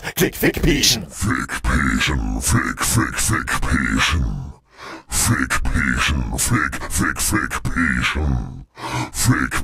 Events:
[0.00, 4.59] male speech
[4.60, 5.06] breathing
[5.12, 8.65] male speech
[8.69, 9.12] breathing
[9.12, 9.63] male speech

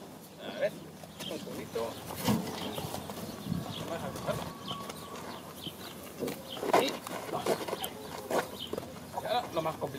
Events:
[0.00, 9.95] background noise
[0.00, 9.95] bird call
[0.29, 9.95] conversation
[0.30, 0.69] male speech
[0.89, 1.26] generic impact sounds
[1.17, 1.94] male speech
[2.03, 3.21] generic impact sounds
[2.19, 3.09] moo
[3.35, 4.50] moo
[3.61, 5.38] footsteps
[3.72, 4.51] male speech
[6.10, 6.32] generic impact sounds
[6.52, 6.97] male speech
[6.53, 8.49] footsteps
[7.27, 7.87] male speech
[7.78, 7.87] tick
[9.09, 9.95] male speech

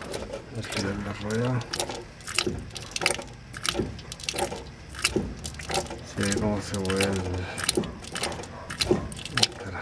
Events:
[0.00, 0.41] generic impact sounds
[0.00, 9.81] mechanisms
[0.49, 1.64] man speaking
[0.54, 0.92] generic impact sounds
[1.26, 1.44] generic impact sounds
[1.56, 1.96] generic impact sounds
[2.15, 2.50] generic impact sounds
[2.66, 3.25] generic impact sounds
[3.47, 3.79] generic impact sounds
[3.93, 4.60] generic impact sounds
[4.90, 5.17] generic impact sounds
[5.33, 6.37] generic impact sounds
[6.14, 7.46] man speaking
[6.67, 7.19] generic impact sounds
[7.27, 7.69] breathing
[7.51, 7.79] generic impact sounds
[7.73, 9.23] bark
[7.98, 8.45] generic impact sounds
[8.66, 8.93] generic impact sounds
[9.09, 9.46] generic impact sounds
[9.29, 9.81] man speaking

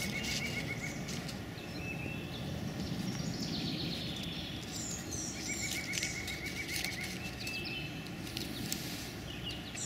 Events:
[0.00, 9.85] bird song
[0.00, 9.85] mechanisms
[0.12, 0.70] crumpling
[0.93, 1.45] crumpling
[4.09, 4.26] crumpling
[4.57, 4.81] crumpling
[5.64, 7.67] crumpling
[8.29, 8.80] crumpling

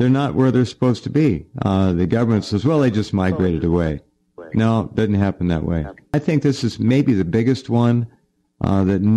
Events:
[0.00, 1.39] male speech
[0.00, 9.15] background noise
[1.53, 4.00] male speech
[4.33, 5.98] male speech
[6.09, 8.14] male speech
[8.58, 9.15] male speech

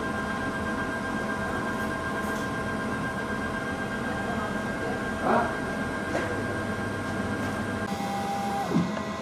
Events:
[0.00, 9.21] printer

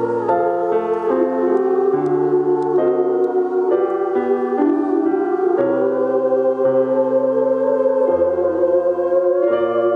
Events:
[0.00, 9.95] choir
[0.00, 9.95] music
[0.21, 0.29] clicking
[0.84, 0.96] clicking
[1.48, 1.56] clicking
[1.98, 2.08] clicking
[2.54, 2.62] clicking
[3.14, 3.23] clicking
[3.81, 3.85] clicking
[4.55, 4.67] clicking
[5.53, 5.61] clicking

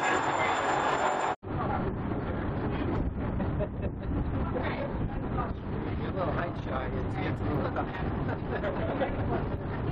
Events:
[0.00, 1.33] mechanisms
[1.43, 9.91] mechanisms
[1.45, 1.95] man speaking
[3.26, 4.25] giggle
[4.46, 4.97] man speaking
[5.16, 5.57] man speaking
[6.16, 8.06] man speaking
[8.33, 9.47] man speaking
[9.71, 9.91] man speaking

